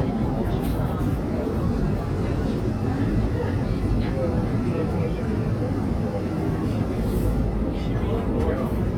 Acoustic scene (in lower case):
subway train